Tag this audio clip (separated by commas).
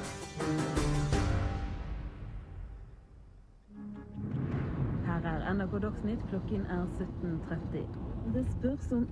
Speech, outside, urban or man-made, Music